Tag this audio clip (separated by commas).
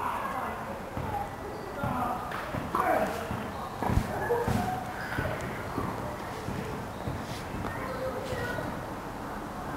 Speech